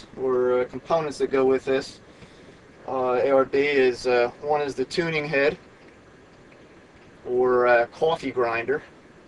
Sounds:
speech

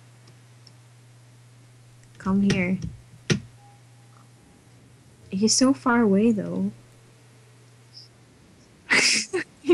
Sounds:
speech

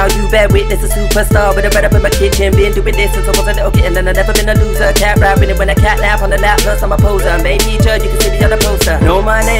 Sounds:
music

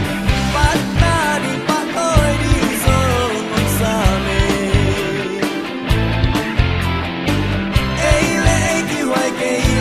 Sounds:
rock music
music

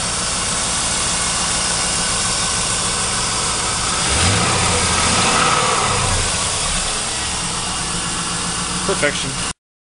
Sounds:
speech
white noise

